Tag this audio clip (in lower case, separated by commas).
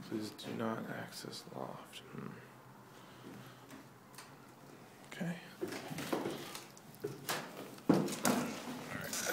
wood, speech, inside a small room